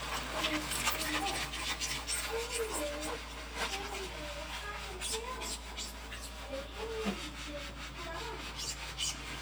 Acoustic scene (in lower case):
kitchen